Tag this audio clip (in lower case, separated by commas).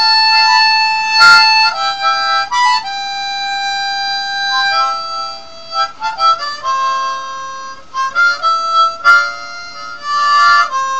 playing harmonica